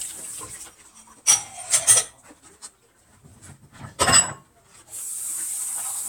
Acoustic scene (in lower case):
kitchen